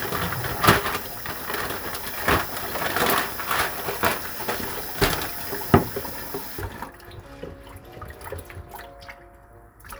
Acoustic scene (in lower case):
kitchen